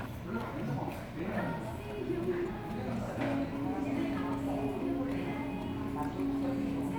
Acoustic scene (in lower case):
restaurant